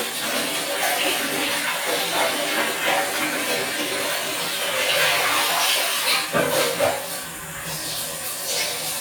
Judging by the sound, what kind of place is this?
restroom